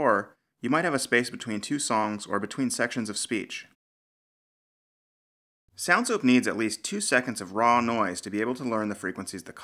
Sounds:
speech

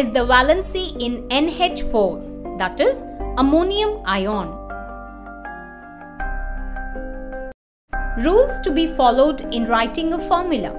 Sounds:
speech
music

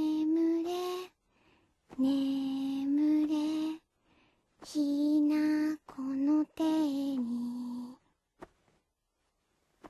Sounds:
lullaby

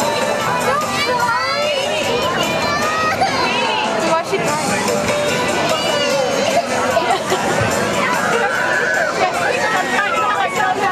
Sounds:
speech
music

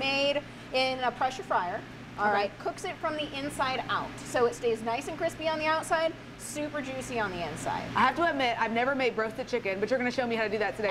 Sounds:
speech

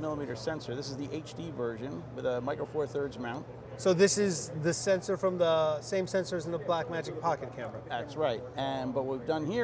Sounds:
speech

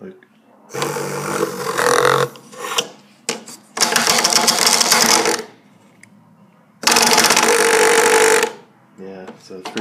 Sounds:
speech
alarm clock

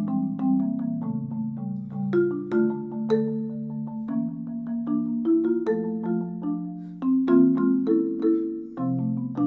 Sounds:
playing vibraphone

